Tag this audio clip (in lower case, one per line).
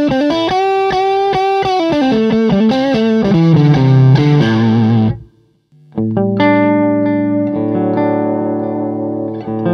guitar
effects unit
electric guitar
musical instrument
music
plucked string instrument